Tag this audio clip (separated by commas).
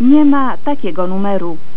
Human voice